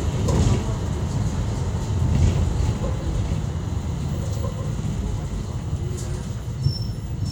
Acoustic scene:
bus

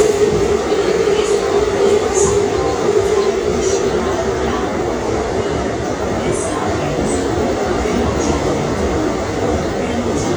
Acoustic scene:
subway train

